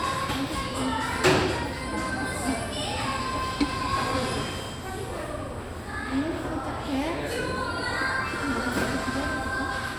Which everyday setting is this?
cafe